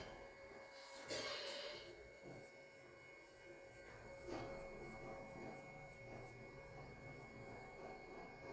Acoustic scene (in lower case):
elevator